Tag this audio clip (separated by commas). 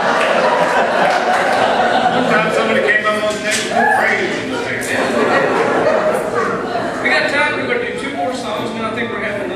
Speech